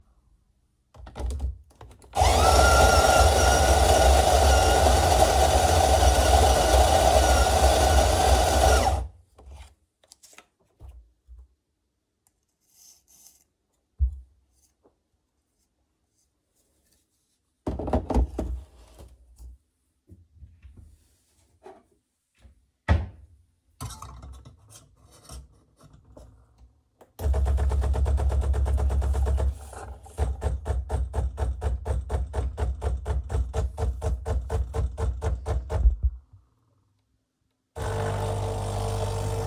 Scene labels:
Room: kitchen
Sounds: coffee machine

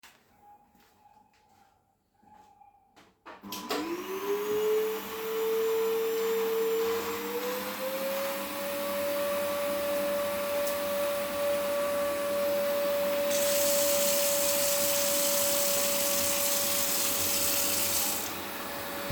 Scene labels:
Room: kitchen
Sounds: footsteps, vacuum cleaner, running water

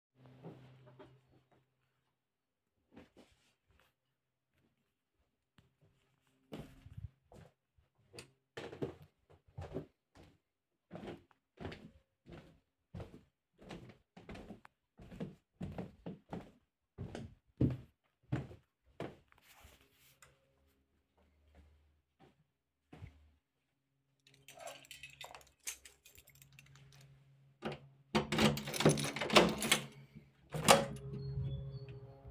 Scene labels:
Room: bedroom, hallway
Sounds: footsteps, light switch, keys, door

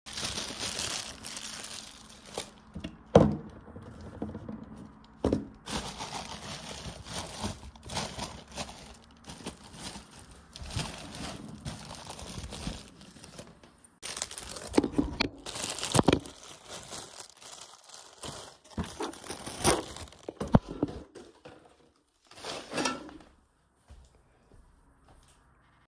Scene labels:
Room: kitchen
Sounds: wardrobe or drawer, cutlery and dishes

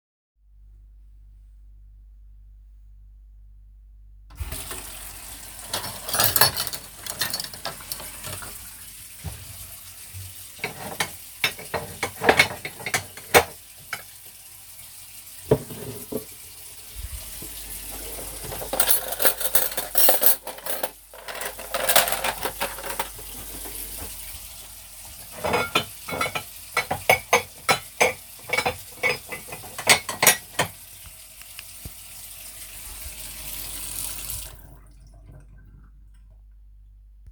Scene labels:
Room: kitchen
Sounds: running water, cutlery and dishes, footsteps

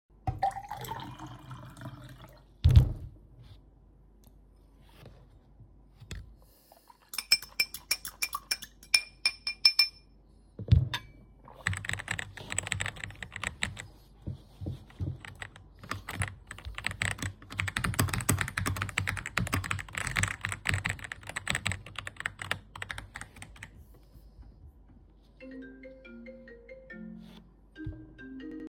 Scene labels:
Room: office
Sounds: cutlery and dishes, keyboard typing, phone ringing

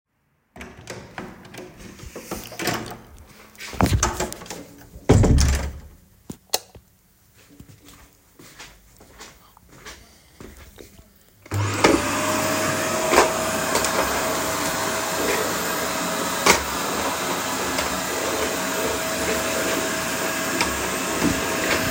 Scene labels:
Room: bedroom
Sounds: door, light switch, footsteps, vacuum cleaner

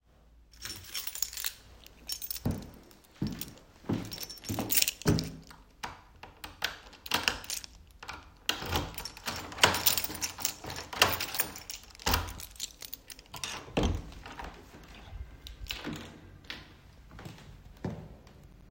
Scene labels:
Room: hallway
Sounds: keys, footsteps, door (more than once)

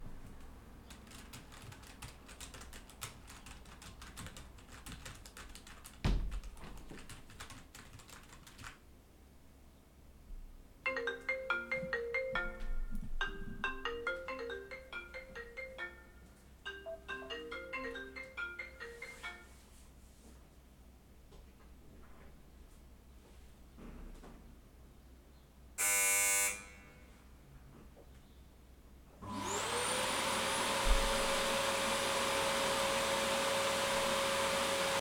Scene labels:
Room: office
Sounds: keyboard typing, window, phone ringing, bell ringing, vacuum cleaner

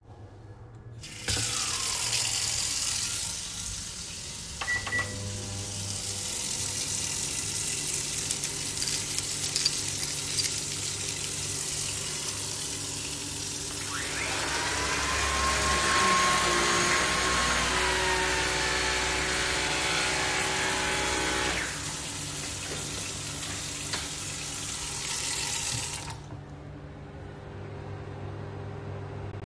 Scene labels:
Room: kitchen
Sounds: running water, microwave, keys, vacuum cleaner

